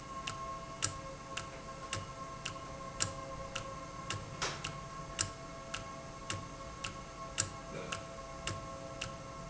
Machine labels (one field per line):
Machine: valve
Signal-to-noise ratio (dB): 0 dB